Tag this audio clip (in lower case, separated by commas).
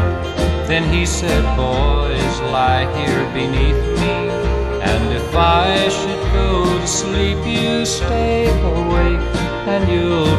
country, music